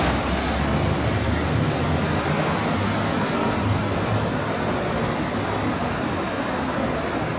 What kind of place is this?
street